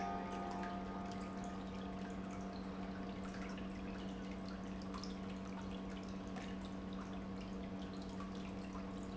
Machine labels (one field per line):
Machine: pump